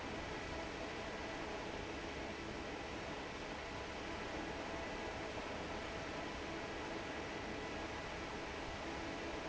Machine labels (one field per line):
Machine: fan